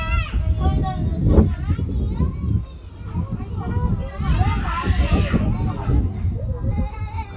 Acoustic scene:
residential area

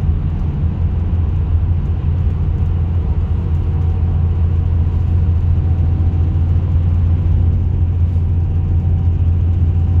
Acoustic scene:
car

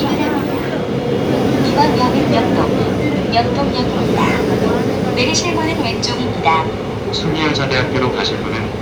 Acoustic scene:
subway train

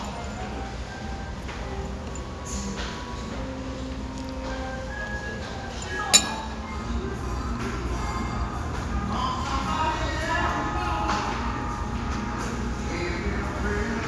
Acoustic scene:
restaurant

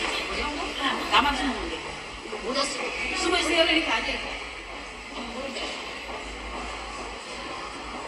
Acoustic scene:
subway station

